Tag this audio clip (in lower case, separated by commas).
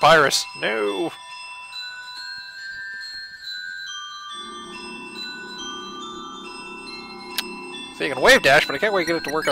xylophone, mallet percussion, glockenspiel, chime